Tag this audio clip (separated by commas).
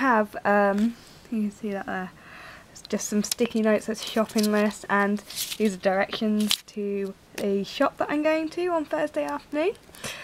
Speech